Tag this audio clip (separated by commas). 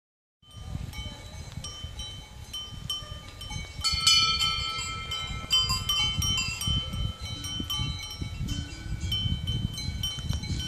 cattle